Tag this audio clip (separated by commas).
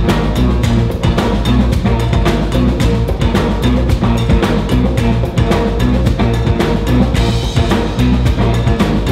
Drum, Music